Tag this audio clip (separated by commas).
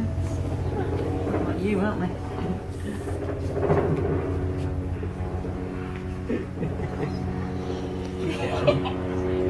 Animal, inside a small room, Speech